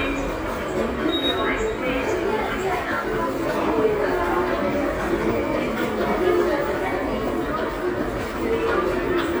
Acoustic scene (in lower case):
subway station